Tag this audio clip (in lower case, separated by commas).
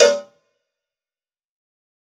cowbell, bell